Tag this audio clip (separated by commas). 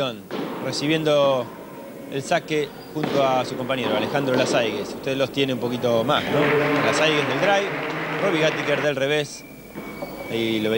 Speech